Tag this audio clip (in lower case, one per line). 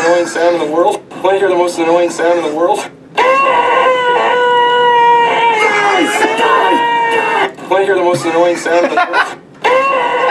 speech